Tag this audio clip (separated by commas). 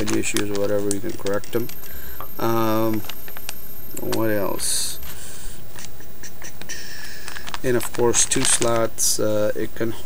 Speech, inside a small room